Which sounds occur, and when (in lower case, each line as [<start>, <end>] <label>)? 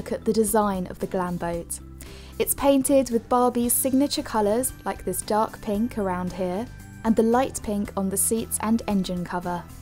[0.00, 1.77] woman speaking
[0.00, 9.81] music
[1.99, 2.33] breathing
[2.36, 4.67] woman speaking
[4.85, 6.67] woman speaking
[7.01, 9.60] woman speaking